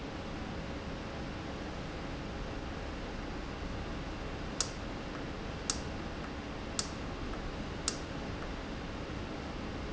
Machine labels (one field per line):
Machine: valve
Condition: normal